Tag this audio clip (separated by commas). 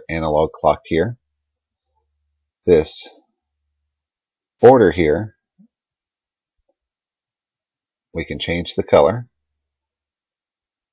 Speech